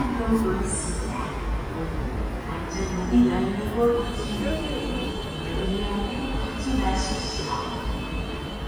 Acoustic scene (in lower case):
subway station